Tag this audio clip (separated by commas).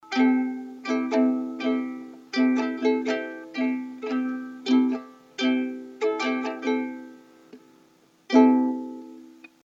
Music, Musical instrument, Plucked string instrument